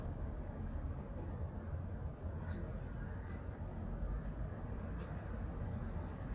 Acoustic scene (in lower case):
residential area